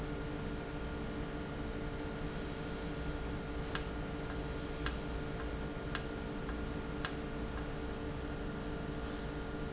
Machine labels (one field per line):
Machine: valve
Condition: normal